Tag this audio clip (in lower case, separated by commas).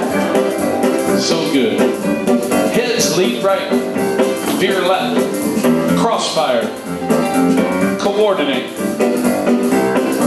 speech, music